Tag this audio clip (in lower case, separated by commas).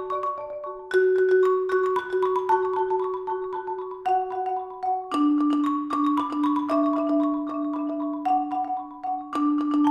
music, percussion